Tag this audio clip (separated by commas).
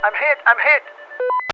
Human voice, Speech, man speaking